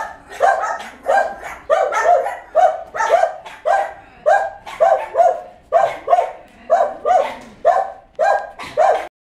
Several small dogs bark